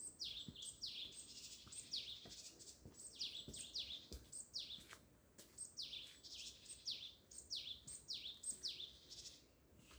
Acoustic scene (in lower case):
park